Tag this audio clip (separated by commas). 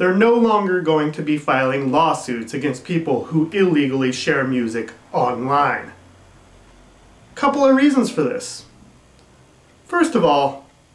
Speech